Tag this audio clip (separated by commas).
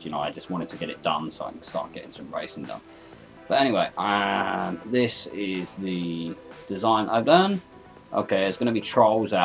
Music, Speech